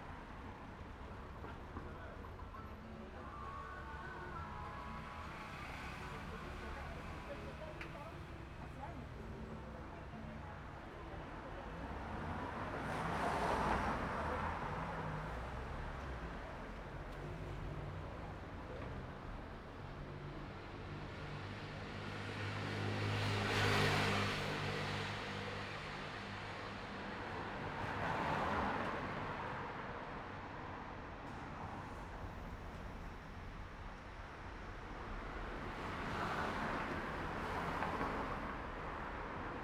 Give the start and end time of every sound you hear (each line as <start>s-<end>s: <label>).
0.0s-2.5s: car wheels rolling
0.0s-7.7s: car
0.0s-7.7s: car engine idling
2.9s-7.6s: music
4.3s-8.0s: motorcycle
4.3s-8.0s: motorcycle engine idling
11.6s-15.4s: car
11.6s-15.4s: car wheels rolling
12.4s-13.7s: car engine accelerating
20.1s-27.7s: motorcycle
20.1s-27.7s: motorcycle engine accelerating
26.0s-39.6s: car
26.0s-39.6s: car wheels rolling